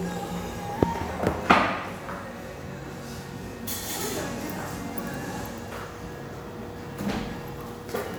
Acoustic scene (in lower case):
cafe